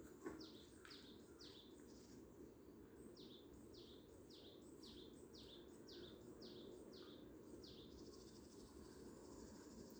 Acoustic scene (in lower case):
park